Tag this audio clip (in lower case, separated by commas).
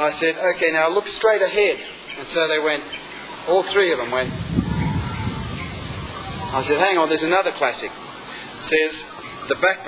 outside, rural or natural, speech